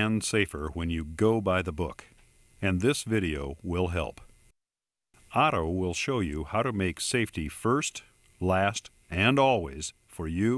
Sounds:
speech

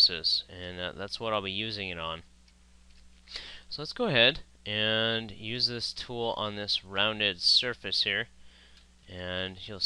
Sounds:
speech

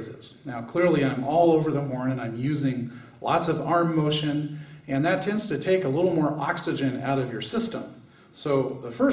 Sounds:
speech

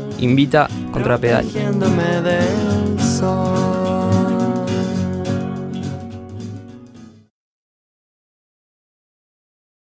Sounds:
music
speech

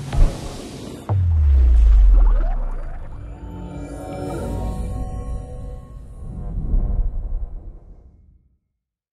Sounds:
music

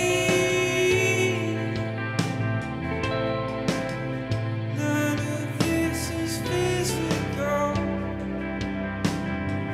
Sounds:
music

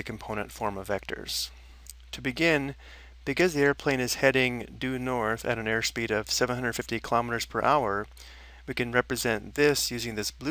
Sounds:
speech

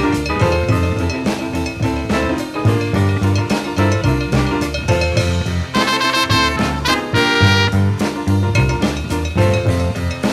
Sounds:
jazz

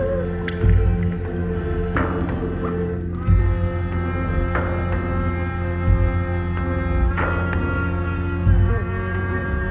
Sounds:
music

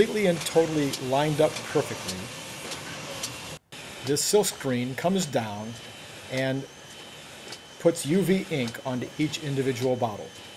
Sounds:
speech

